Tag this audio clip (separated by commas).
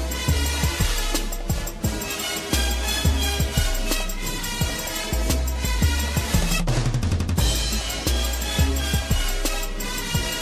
Music